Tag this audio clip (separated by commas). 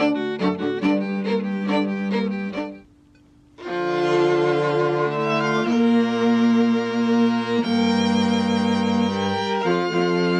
Music, Bowed string instrument, Classical music, Musical instrument, Violin